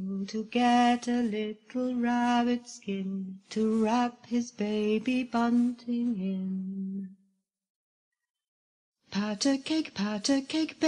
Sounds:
vocal music

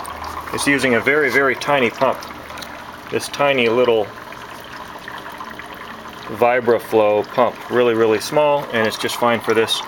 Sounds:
speech
boiling

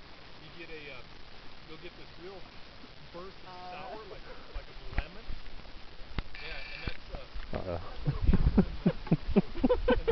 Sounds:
speech

